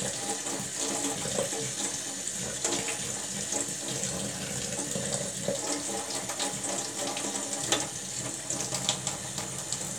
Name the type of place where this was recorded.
kitchen